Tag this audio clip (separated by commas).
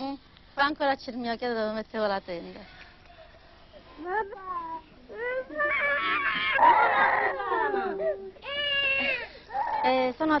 inside a small room, Crying, Speech